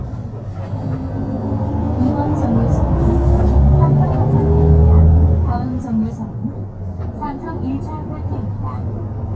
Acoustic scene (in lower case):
bus